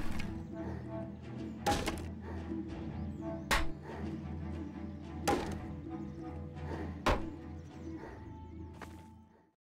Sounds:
chop

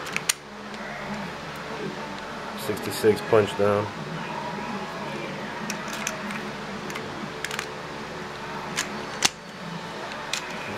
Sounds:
tools, speech

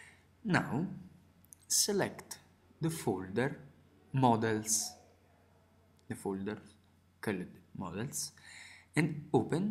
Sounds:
speech

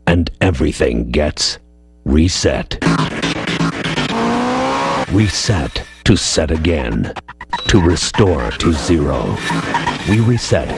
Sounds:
music, car, speech, vehicle

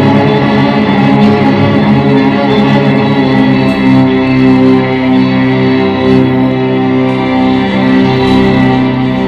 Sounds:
musical instrument, music

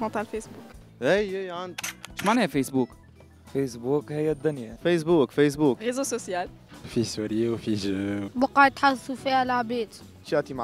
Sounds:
music, speech

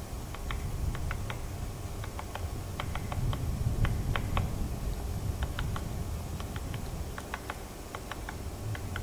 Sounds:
woodpecker pecking tree

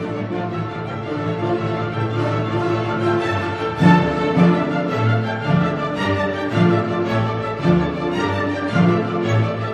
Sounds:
music

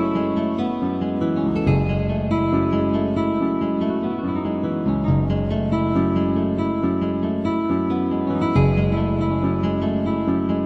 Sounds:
music

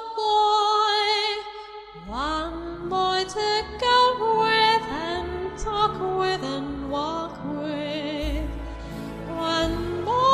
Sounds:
music, female singing

